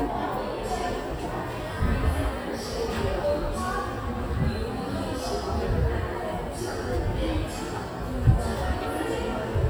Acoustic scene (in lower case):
crowded indoor space